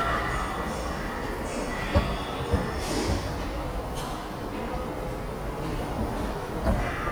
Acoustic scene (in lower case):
subway station